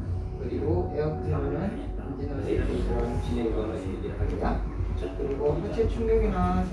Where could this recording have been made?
in a crowded indoor space